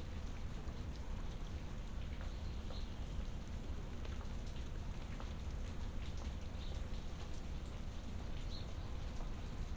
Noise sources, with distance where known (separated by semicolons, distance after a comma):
background noise